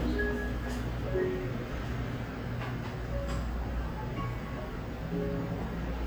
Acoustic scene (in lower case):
cafe